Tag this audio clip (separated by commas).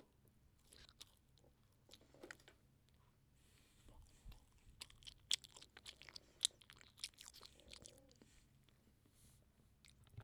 mastication